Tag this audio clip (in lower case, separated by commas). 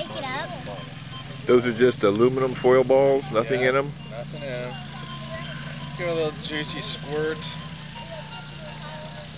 music, speech